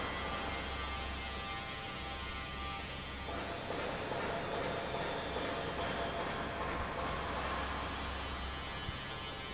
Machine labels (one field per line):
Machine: fan